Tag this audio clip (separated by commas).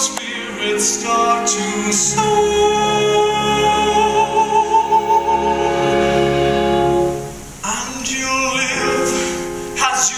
Music, Opera